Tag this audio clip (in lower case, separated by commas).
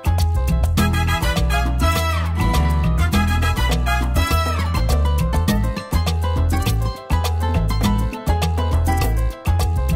music